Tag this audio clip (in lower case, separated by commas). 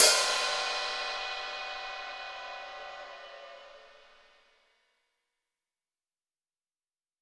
percussion, music, cymbal, musical instrument, hi-hat